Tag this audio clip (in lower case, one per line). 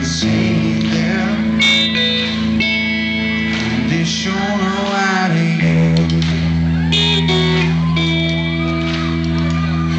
music